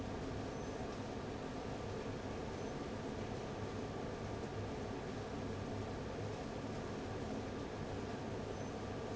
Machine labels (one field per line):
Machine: fan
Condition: abnormal